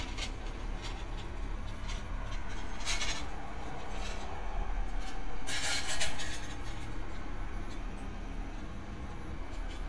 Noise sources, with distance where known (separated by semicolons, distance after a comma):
non-machinery impact, near